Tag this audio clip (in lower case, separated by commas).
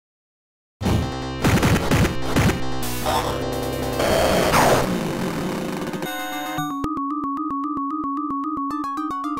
music, inside a small room